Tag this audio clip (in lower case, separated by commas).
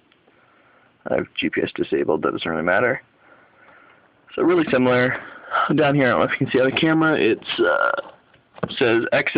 speech, inside a small room